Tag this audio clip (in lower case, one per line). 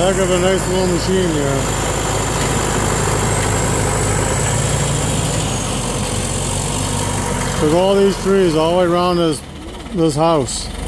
speech